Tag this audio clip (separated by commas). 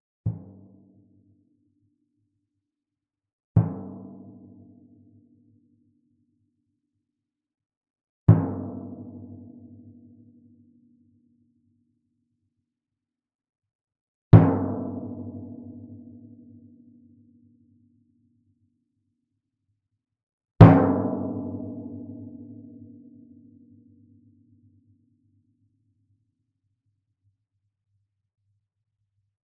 Music, Musical instrument, Drum, Percussion